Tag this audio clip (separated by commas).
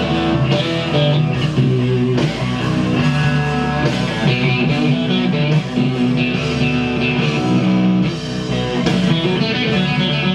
Guitar, Acoustic guitar, Music, Musical instrument, Bass guitar